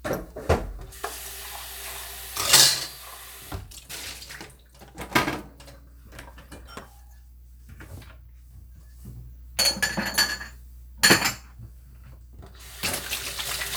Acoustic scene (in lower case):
kitchen